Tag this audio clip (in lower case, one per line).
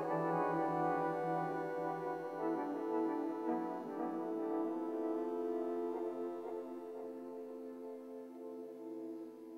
music
inside a large room or hall